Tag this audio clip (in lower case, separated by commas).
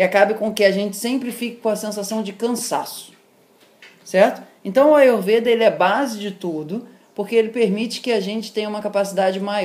inside a small room, speech